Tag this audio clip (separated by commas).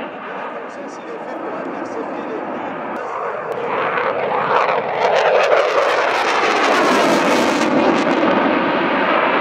airplane flyby